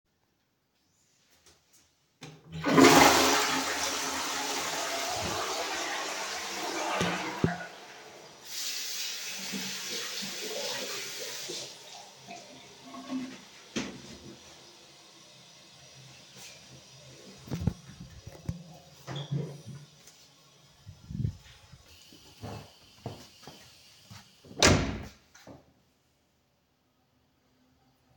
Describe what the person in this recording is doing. I flush the toilet then wash my hands and close the door behind me while I walk into the hallway